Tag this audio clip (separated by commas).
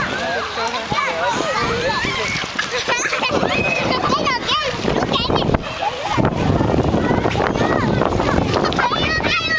Speech, Stream, Gurgling